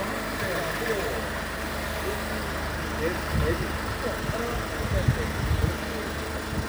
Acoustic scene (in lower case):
residential area